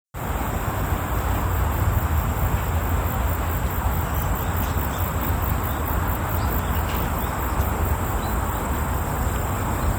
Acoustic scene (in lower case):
park